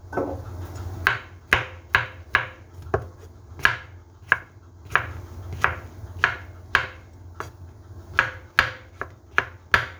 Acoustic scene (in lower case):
kitchen